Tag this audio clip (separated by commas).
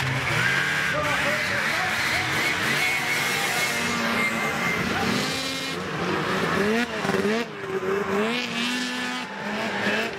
driving snowmobile